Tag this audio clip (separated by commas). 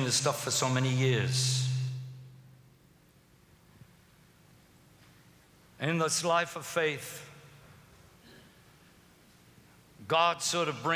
Speech